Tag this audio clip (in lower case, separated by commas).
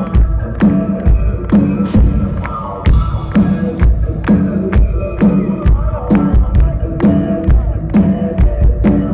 music